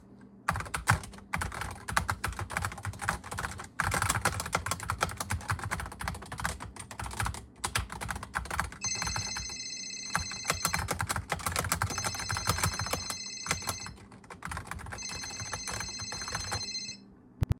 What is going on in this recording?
I place the recording device on the desk and start typing on the keyboard. While I am still typing, a phone starts ringing. I continue typing for a short moment while the phone is ringing.